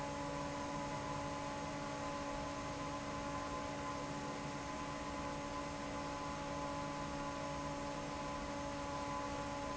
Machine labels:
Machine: fan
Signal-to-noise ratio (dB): 0 dB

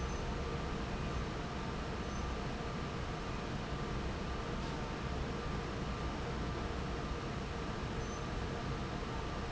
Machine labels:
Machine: fan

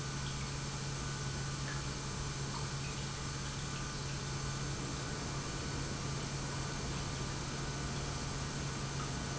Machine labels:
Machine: pump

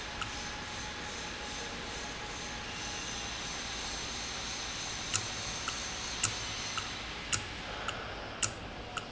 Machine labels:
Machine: valve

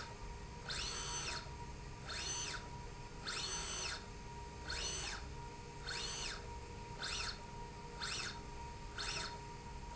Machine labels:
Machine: slide rail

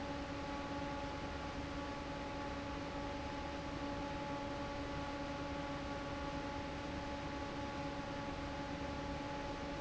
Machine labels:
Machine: fan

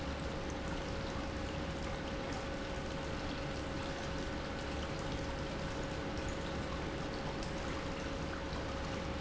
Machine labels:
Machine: pump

